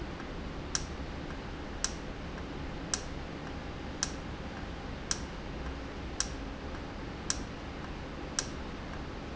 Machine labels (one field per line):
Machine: valve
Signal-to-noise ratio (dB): -6 dB